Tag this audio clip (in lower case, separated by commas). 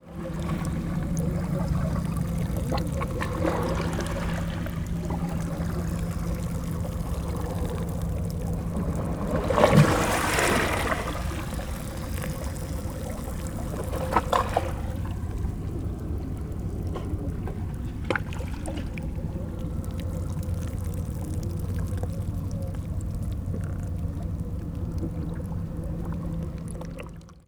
liquid, pour, splash, ocean, water, trickle, waves